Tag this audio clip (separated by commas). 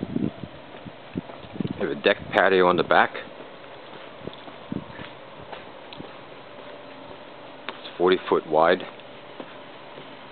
Speech, Walk